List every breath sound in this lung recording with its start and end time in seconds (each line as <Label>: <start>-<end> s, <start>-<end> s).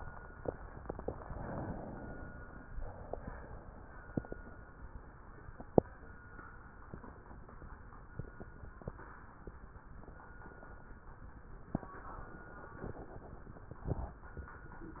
Inhalation: 1.06-2.65 s
Exhalation: 2.65-4.10 s